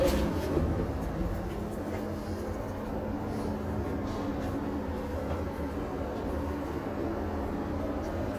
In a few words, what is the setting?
subway train